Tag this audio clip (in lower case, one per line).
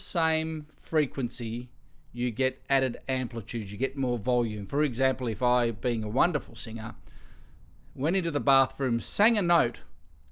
speech